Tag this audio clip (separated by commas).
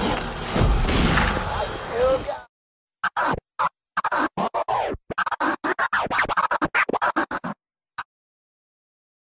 Music, Speech